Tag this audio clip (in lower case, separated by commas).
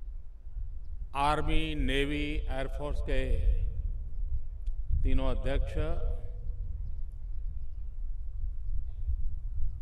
male speech, speech